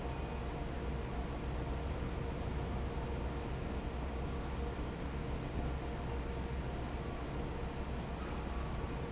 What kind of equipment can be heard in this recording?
fan